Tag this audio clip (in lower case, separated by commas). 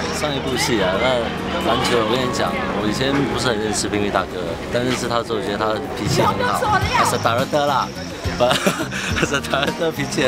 music, speech